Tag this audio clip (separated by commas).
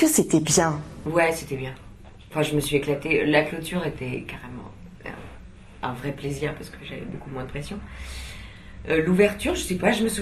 Speech